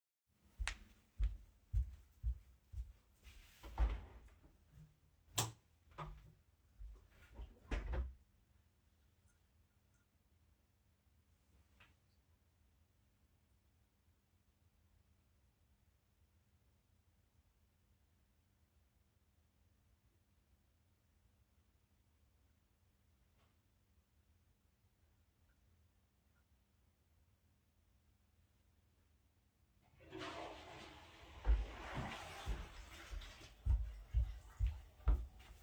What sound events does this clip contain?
footsteps, door, light switch, toilet flushing